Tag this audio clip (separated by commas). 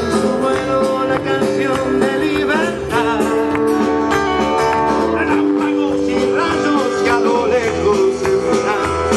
Country, Music